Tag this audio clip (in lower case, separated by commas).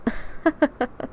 laughter, chuckle, human voice